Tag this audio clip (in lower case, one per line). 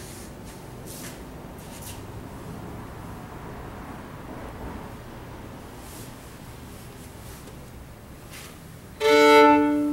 music
musical instrument
violin